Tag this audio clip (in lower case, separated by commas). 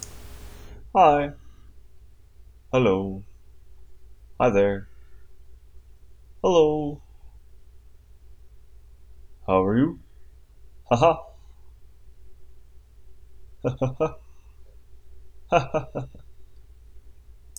human voice, laughter